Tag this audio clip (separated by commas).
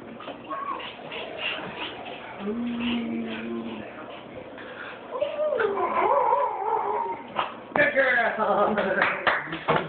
Howl, canids, Domestic animals, Speech, Animal, Dog